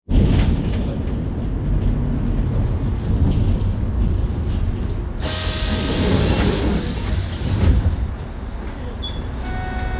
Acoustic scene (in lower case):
bus